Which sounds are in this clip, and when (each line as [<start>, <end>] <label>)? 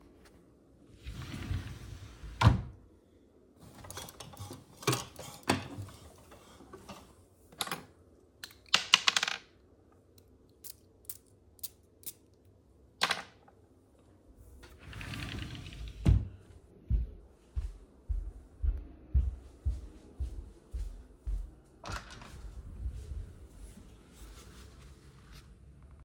[1.08, 2.84] wardrobe or drawer
[14.89, 16.33] wardrobe or drawer
[16.80, 21.65] footsteps
[21.76, 22.32] door